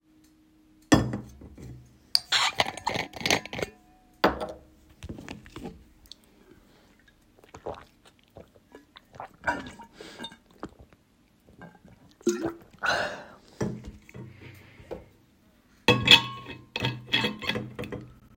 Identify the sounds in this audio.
cutlery and dishes